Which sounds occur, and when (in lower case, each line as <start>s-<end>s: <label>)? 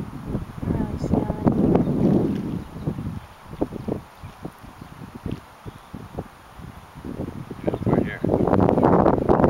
0.0s-5.4s: wind noise (microphone)
0.0s-9.4s: ocean
0.6s-1.6s: woman speaking
1.7s-2.4s: chirp
2.6s-2.9s: chirp
3.5s-3.8s: chirp
4.1s-4.4s: chirp
4.7s-4.9s: chirp
5.6s-5.7s: wind noise (microphone)
5.6s-6.1s: chirp
5.9s-6.3s: wind noise (microphone)
6.6s-9.4s: wind noise (microphone)
7.6s-8.2s: man speaking
7.6s-7.7s: chirp